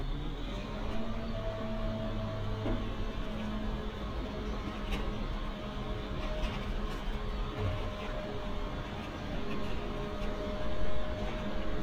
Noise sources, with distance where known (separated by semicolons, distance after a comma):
large-sounding engine